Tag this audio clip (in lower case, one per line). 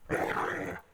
dog
animal
pets